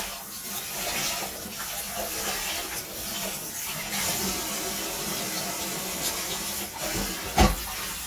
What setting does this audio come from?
kitchen